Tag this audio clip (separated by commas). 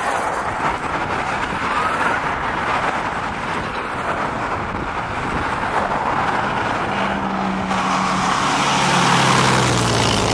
Vehicle, Car, Truck